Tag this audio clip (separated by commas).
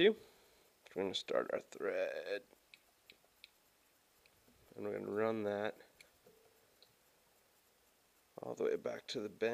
Speech